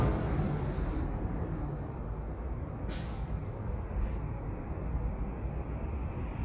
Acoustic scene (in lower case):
street